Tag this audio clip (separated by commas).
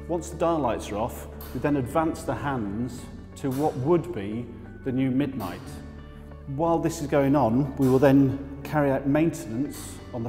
Speech, Music, Tick-tock